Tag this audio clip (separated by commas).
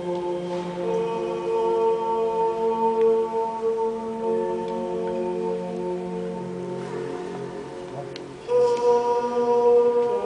Music